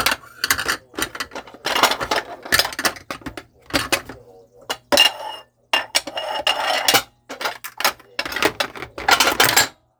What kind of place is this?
kitchen